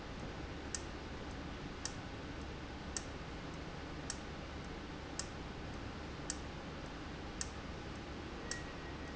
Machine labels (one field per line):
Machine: valve